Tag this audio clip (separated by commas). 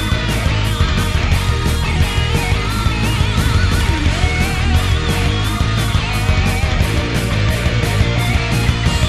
Soundtrack music, Music